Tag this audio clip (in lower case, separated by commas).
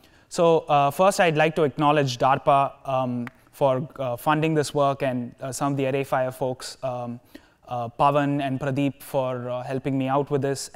speech